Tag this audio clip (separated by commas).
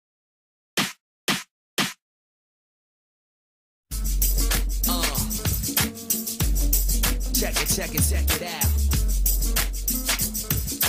Music